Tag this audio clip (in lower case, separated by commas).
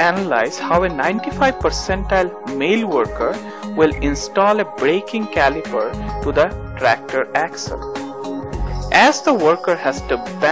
music, speech